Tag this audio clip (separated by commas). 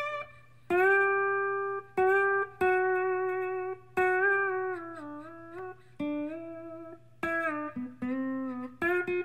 playing steel guitar